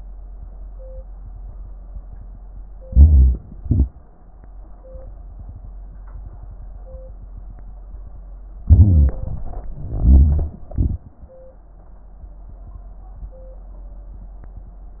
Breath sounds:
Inhalation: 2.85-3.60 s, 8.64-9.93 s
Exhalation: 3.60-4.15 s, 9.96-11.24 s

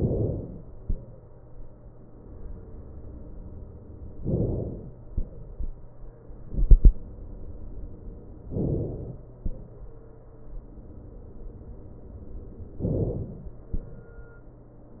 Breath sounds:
Inhalation: 0.00-0.81 s, 4.31-5.13 s, 8.53-9.36 s, 12.82-13.64 s

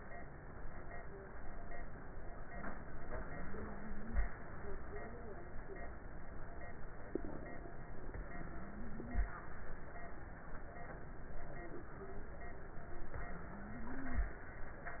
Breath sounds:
Inhalation: 13.13-14.23 s
Exhalation: 14.29-15.00 s
Crackles: 13.13-14.23 s

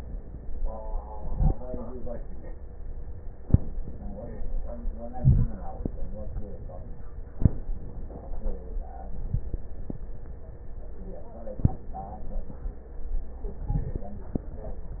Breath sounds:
Inhalation: 1.15-1.57 s, 5.15-5.57 s, 13.58-14.01 s
Crackles: 5.15-5.57 s, 13.58-14.01 s

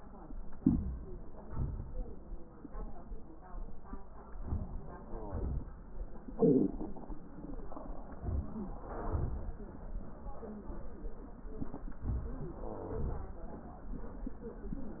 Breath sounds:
Inhalation: 0.52-1.25 s, 4.26-4.93 s, 8.15-8.82 s
Exhalation: 1.25-2.44 s, 4.95-5.97 s, 8.80-9.79 s
Crackles: 12.26-13.27 s

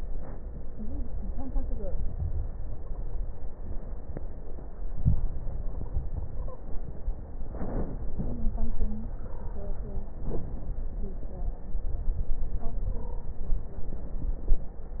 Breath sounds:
Inhalation: 4.88-6.58 s, 7.26-8.11 s, 10.11-11.06 s
Stridor: 2.70-3.07 s, 5.41-6.02 s, 6.24-6.66 s, 12.89-13.37 s
Crackles: 7.26-8.11 s, 10.11-11.06 s

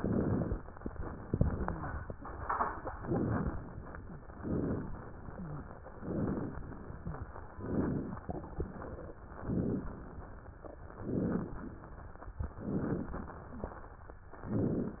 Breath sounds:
Inhalation: 0.00-0.61 s, 3.04-3.70 s, 4.36-5.03 s, 6.00-6.66 s, 7.57-8.24 s, 9.35-10.02 s, 11.02-11.69 s, 12.54-13.21 s, 14.48-15.00 s
Exhalation: 1.23-2.09 s
Wheeze: 1.40-1.96 s, 3.98-4.29 s, 5.29-5.63 s, 6.96-7.32 s
Crackles: 0.00-0.61 s, 3.04-3.70 s, 4.36-5.03 s, 6.00-6.66 s, 7.57-8.24 s, 9.35-10.02 s, 11.02-11.69 s, 12.54-13.21 s, 14.48-15.00 s

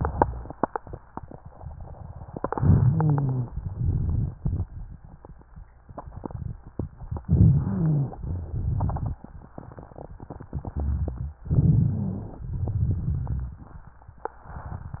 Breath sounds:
Inhalation: 2.52-3.51 s, 7.27-8.22 s, 11.50-12.45 s
Exhalation: 8.25-9.37 s, 12.48-13.85 s
Rhonchi: 2.52-3.51 s, 7.27-8.22 s, 11.50-12.45 s
Crackles: 3.61-4.90 s, 8.25-9.37 s, 12.48-13.85 s

